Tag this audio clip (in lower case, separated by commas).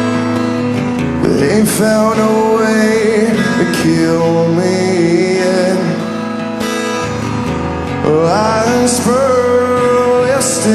music